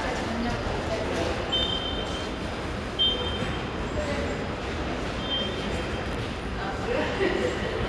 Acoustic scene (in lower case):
subway station